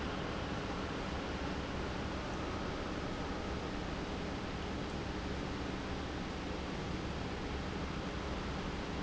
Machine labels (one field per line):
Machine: pump